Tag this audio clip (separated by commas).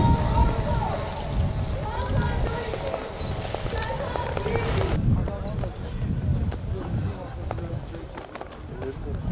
Speech